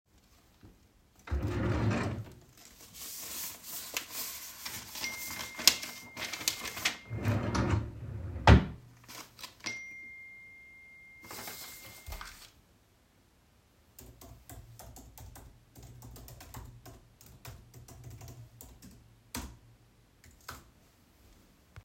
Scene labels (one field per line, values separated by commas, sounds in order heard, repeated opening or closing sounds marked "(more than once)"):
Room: office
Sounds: wardrobe or drawer (more than once), phone ringing, keyboard typing